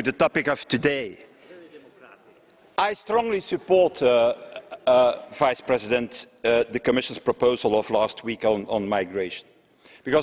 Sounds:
monologue, Speech, Male speech

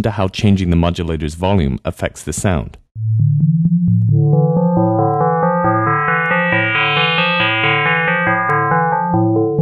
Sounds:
Musical instrument, Music, Keyboard (musical), Speech, Synthesizer

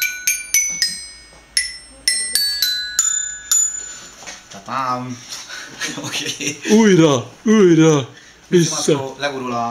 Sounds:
Speech, Marimba, Music, Musical instrument

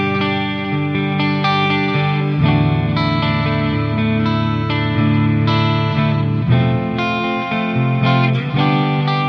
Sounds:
Music

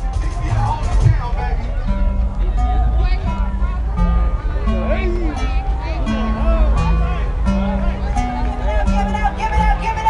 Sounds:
Speech, Music

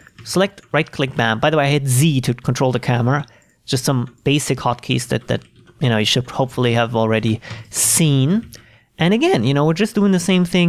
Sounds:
Speech

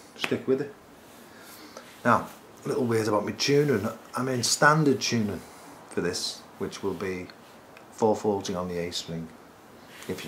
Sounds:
Speech

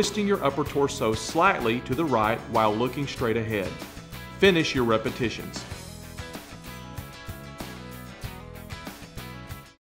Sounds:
Music, Speech

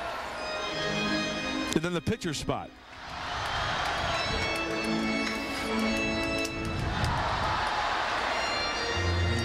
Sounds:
Speech, Music

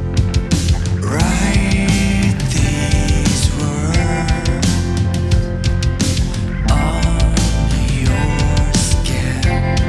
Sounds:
Soundtrack music, Music

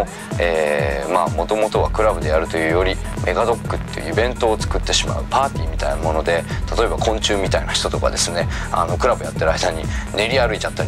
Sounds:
Music, Speech

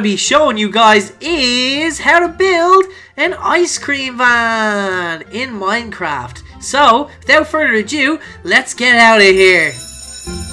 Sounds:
Music, Speech

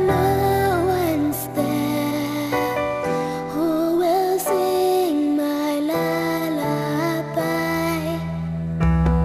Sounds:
Lullaby, Music

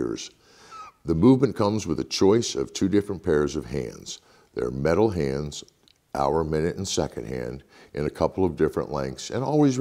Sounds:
Speech

